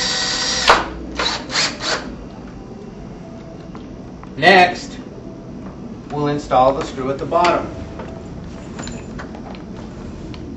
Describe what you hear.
An electric power tool runs, a man speaks